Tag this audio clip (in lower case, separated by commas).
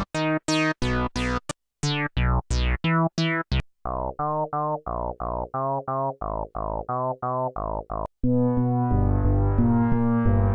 music, synthesizer